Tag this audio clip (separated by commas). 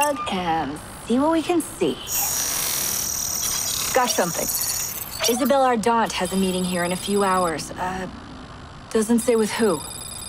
Speech